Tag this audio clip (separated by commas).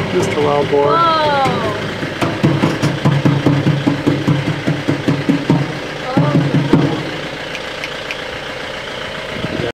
Music, Speech